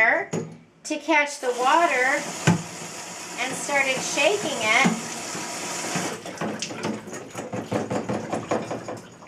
A woman speaks, water flows from a faucet